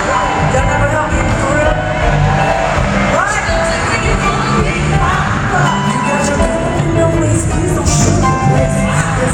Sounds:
Speech, Music, Female singing

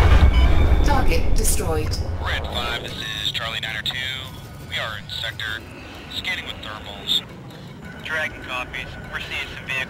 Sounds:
police radio chatter

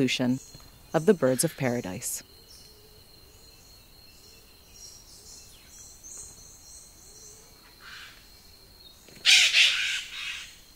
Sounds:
Speech, Bird

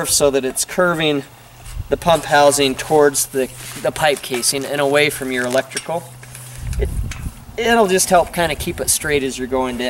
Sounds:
Speech

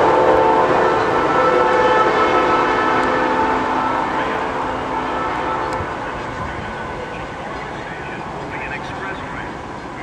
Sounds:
Speech

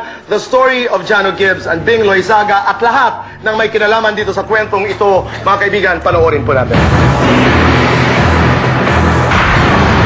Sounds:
Speech

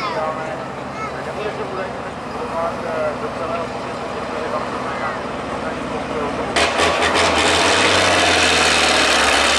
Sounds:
Speech, Vehicle, Truck

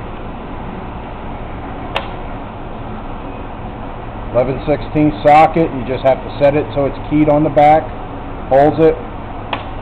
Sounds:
Speech, inside a small room, Vehicle

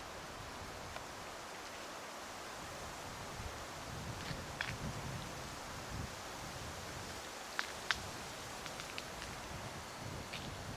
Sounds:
outside, rural or natural

